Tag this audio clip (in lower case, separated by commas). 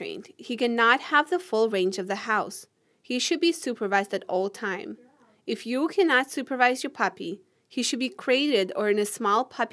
speech